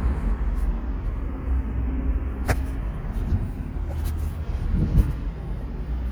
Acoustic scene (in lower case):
residential area